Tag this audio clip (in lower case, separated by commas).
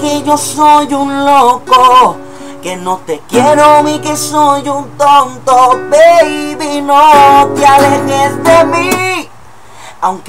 plucked string instrument, guitar, musical instrument, music